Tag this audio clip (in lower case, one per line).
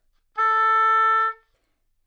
musical instrument
woodwind instrument
music